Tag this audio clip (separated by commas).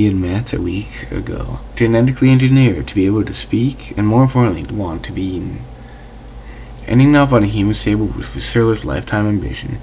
Speech